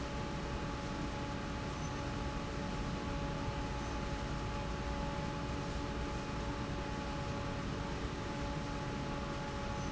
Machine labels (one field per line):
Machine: fan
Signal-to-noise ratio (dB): -6 dB